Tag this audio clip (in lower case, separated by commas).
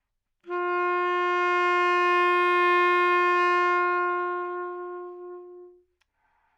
wind instrument, musical instrument, music